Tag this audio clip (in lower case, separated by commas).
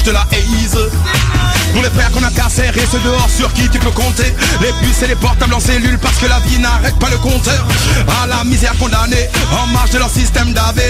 music